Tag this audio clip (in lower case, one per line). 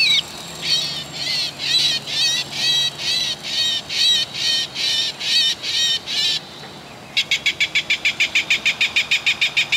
bird
goose